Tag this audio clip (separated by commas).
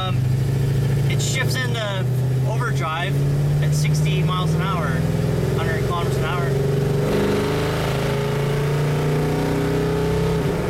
Speech